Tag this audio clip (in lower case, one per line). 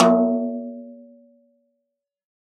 snare drum
percussion
musical instrument
drum
music